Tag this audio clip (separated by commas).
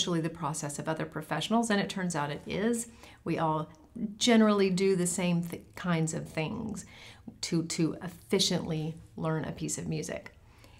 Speech